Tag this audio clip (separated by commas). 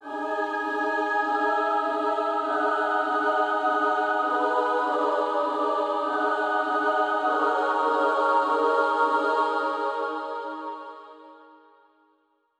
Singing, Musical instrument, Human voice, Music